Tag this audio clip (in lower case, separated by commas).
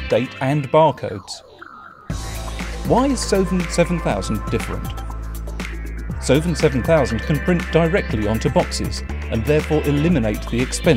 speech, music